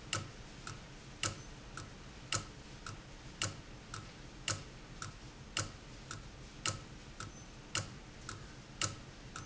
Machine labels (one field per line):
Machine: valve